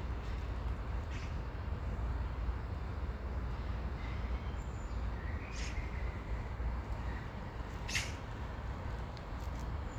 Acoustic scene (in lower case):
park